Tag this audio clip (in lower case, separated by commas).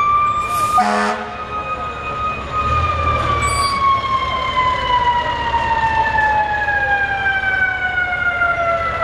siren, emergency vehicle, fire engine